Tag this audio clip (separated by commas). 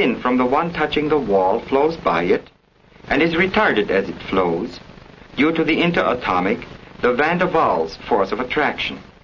Speech